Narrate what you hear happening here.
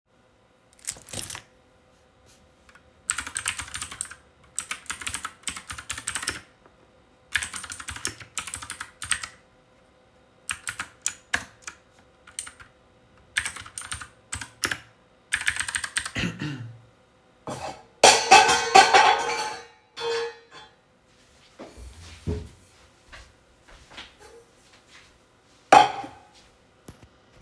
Moved away my keychain, and started typing on my keyboard. While I was typing, my throat started hurting. I coughed and wanted to sip a bit of tea and accidentally pushed down the tea can from the desk, making a loud crash noise. I got up from my chair, picked the can up, but back down to the desk and I sat down.